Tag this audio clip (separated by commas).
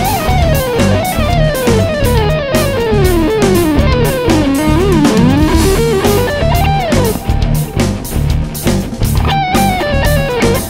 Musical instrument, Plucked string instrument, Electric guitar, Music, Heavy metal, Guitar